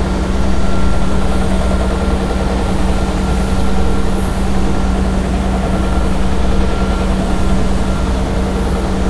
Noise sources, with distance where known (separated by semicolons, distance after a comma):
unidentified impact machinery